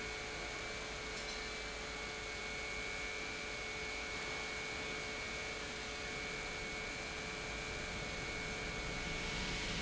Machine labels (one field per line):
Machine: pump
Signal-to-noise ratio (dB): 0 dB